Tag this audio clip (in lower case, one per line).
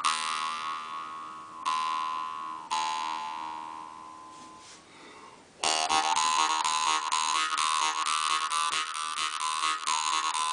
music